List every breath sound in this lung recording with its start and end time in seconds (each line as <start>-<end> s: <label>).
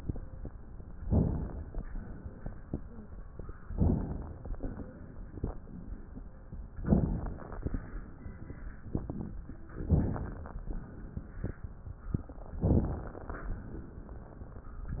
1.00-1.70 s: inhalation
1.70-2.55 s: exhalation
3.72-4.55 s: inhalation
4.57-5.60 s: exhalation
6.79-7.63 s: inhalation
9.76-10.60 s: inhalation
12.59-13.59 s: inhalation